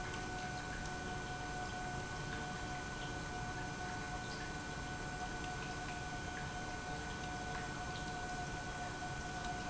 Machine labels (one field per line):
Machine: pump